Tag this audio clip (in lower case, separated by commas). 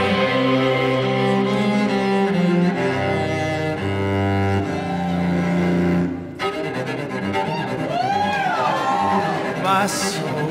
double bass, cello